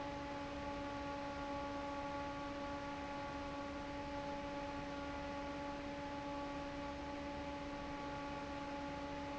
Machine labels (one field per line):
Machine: fan